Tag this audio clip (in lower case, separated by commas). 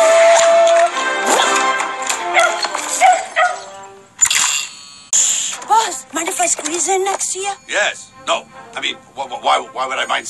music, speech